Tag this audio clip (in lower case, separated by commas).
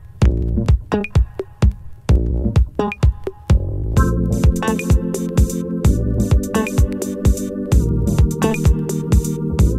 music